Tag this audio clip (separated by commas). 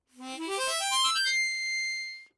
Harmonica, Music, Musical instrument